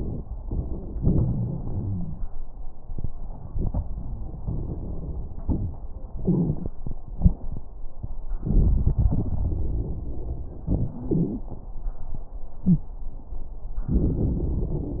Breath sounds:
0.95-2.27 s: inhalation
1.63-2.20 s: wheeze
4.42-5.74 s: exhalation
4.42-5.74 s: crackles
6.16-6.74 s: inhalation
6.16-6.74 s: crackles
7.16-7.74 s: exhalation
7.16-7.74 s: crackles
8.42-10.51 s: inhalation
8.42-10.51 s: crackles
10.67-11.49 s: exhalation
10.97-11.49 s: wheeze
12.66-12.89 s: wheeze
13.89-15.00 s: inhalation
13.89-15.00 s: crackles

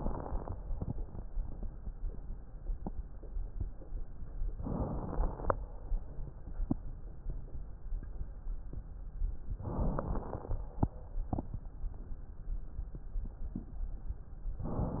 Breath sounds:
0.00-0.55 s: inhalation
0.00-0.55 s: crackles
4.55-5.52 s: inhalation
4.55-5.52 s: crackles
9.60-10.63 s: inhalation
9.60-10.63 s: crackles

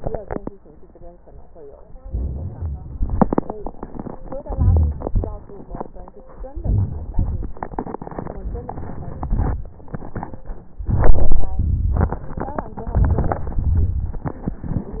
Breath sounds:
1.99-2.98 s: inhalation
2.98-3.79 s: exhalation
4.37-5.09 s: crackles
4.42-5.10 s: inhalation
5.10-5.71 s: exhalation
5.10-5.71 s: crackles
6.54-7.16 s: inhalation
7.14-7.65 s: exhalation
8.30-9.29 s: inhalation
9.29-9.93 s: exhalation
10.95-11.55 s: inhalation
11.61-12.24 s: exhalation
12.94-13.59 s: inhalation
13.61-14.35 s: exhalation

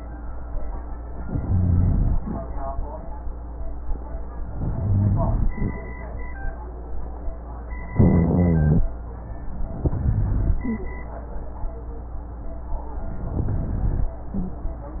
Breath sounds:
1.22-2.15 s: inhalation
1.22-2.15 s: rhonchi
4.55-5.49 s: inhalation
4.55-5.49 s: rhonchi
7.93-8.86 s: inhalation
7.93-8.86 s: rhonchi
9.81-10.66 s: inhalation
9.81-10.66 s: rhonchi
13.26-14.12 s: inhalation

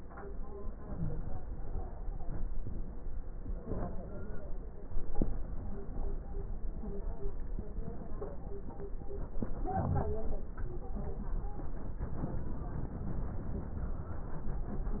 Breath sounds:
0.69-1.96 s: inhalation
0.89-1.30 s: wheeze
3.55-4.76 s: inhalation
9.41-10.56 s: inhalation
9.41-10.56 s: crackles

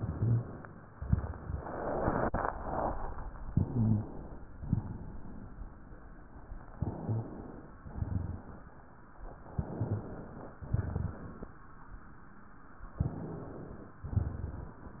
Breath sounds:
3.49-4.51 s: inhalation
3.68-4.03 s: rhonchi
4.55-5.57 s: exhalation
6.74-7.75 s: inhalation
7.06-7.25 s: rhonchi
7.89-9.03 s: exhalation
9.43-10.56 s: inhalation
10.56-11.57 s: exhalation
13.00-14.02 s: inhalation

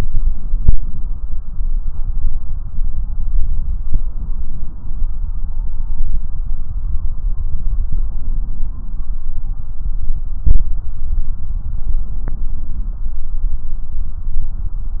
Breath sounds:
0.00-1.18 s: inhalation
11.93-13.11 s: inhalation

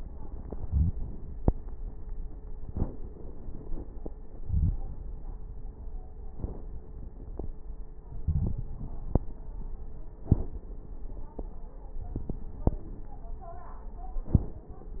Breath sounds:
0.59-0.93 s: inhalation
2.61-2.95 s: exhalation
4.43-4.77 s: inhalation
6.37-6.71 s: exhalation
8.27-8.69 s: inhalation
8.27-8.69 s: crackles
10.20-10.63 s: exhalation
14.27-14.69 s: exhalation

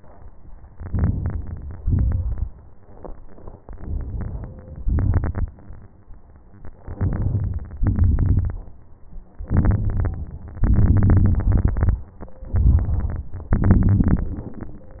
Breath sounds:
0.77-1.83 s: inhalation
1.83-2.59 s: exhalation
3.62-4.83 s: inhalation
4.86-5.54 s: exhalation
4.88-5.53 s: crackles
6.86-7.79 s: inhalation
7.80-8.74 s: crackles
7.83-8.75 s: exhalation
9.49-10.57 s: inhalation
10.65-12.09 s: exhalation
12.53-13.54 s: inhalation
13.55-14.75 s: exhalation
13.56-14.76 s: crackles

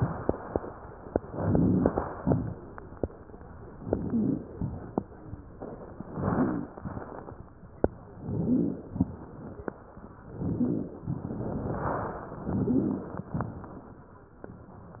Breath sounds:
1.18-1.99 s: rhonchi
1.23-2.20 s: inhalation
2.20-3.00 s: exhalation
2.24-2.58 s: rhonchi
3.78-4.57 s: inhalation
3.81-4.44 s: rhonchi
4.55-5.03 s: exhalation
6.00-6.74 s: inhalation
6.13-6.68 s: rhonchi
6.78-7.17 s: exhalation
8.18-8.90 s: inhalation
8.31-8.86 s: rhonchi
8.90-9.34 s: exhalation
10.29-11.02 s: inhalation
10.38-10.93 s: rhonchi
12.45-13.30 s: inhalation
12.58-13.22 s: rhonchi
13.36-13.81 s: exhalation

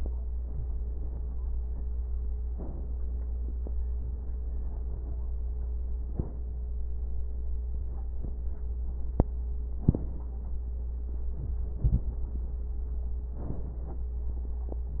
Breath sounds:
0.34-1.70 s: exhalation
0.34-1.70 s: crackles
2.46-3.85 s: inhalation
2.46-3.85 s: crackles
3.94-5.83 s: exhalation
3.94-5.83 s: crackles
5.84-6.74 s: inhalation
5.84-6.74 s: crackles
7.70-9.56 s: exhalation
7.70-9.56 s: crackles
9.60-10.83 s: inhalation
9.60-10.83 s: crackles
11.28-13.24 s: crackles
11.30-13.29 s: exhalation
13.29-15.00 s: inhalation
13.29-15.00 s: crackles

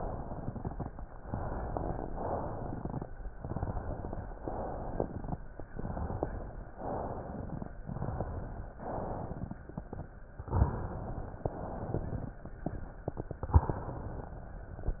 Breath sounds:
0.00-0.86 s: exhalation
0.00-0.86 s: crackles
1.25-2.05 s: inhalation
1.25-2.05 s: crackles
2.16-3.06 s: exhalation
2.16-3.06 s: crackles
3.42-4.31 s: inhalation
3.42-4.31 s: crackles
4.42-5.31 s: exhalation
4.42-5.31 s: crackles
5.69-6.68 s: inhalation
5.69-6.68 s: crackles
6.77-7.76 s: exhalation
6.77-7.76 s: crackles
7.85-8.71 s: inhalation
7.85-8.71 s: crackles
8.80-9.66 s: exhalation
8.80-9.66 s: crackles
10.49-11.46 s: inhalation
10.49-11.46 s: crackles
11.54-12.37 s: exhalation
11.54-12.37 s: crackles
13.58-14.59 s: inhalation
13.58-14.59 s: crackles

